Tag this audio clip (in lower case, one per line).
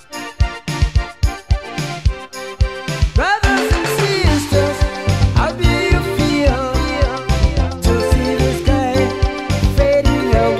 music